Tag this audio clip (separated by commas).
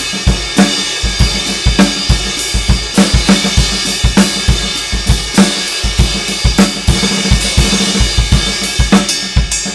Drum, Drum kit, Musical instrument, Music, Hi-hat